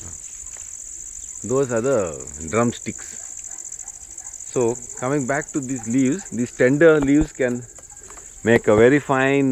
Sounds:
Speech

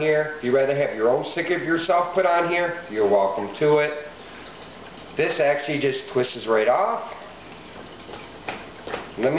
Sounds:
Speech

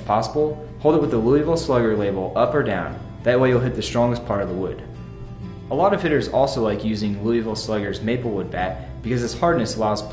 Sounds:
Music, Speech

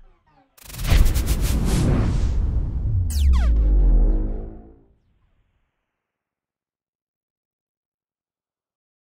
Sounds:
Music

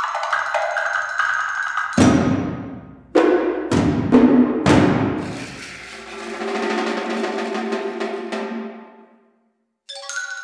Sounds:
Percussion, Wood block, Music

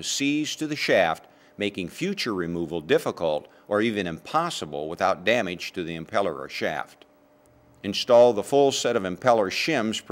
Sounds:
Speech

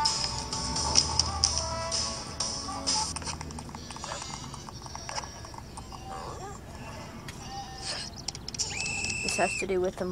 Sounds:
Sheep, Speech, Bleat, Music

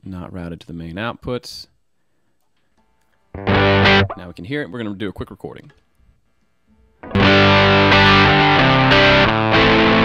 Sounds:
Music, Speech

